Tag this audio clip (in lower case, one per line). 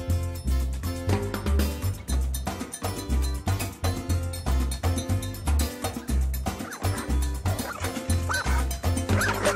bow-wow
dog
animal
yip
music
domestic animals